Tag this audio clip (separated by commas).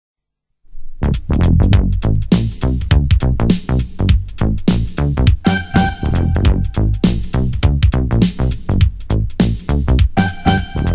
Sampler, Music, Soul music